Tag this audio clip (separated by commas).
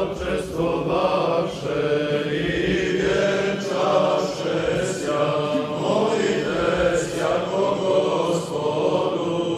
Choir, Chant